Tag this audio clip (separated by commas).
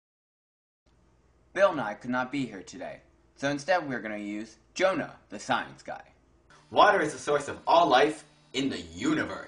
Speech